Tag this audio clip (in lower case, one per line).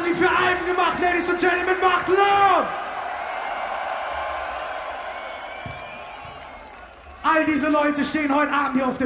speech